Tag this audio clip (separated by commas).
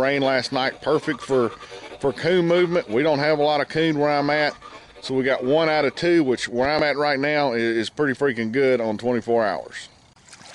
Speech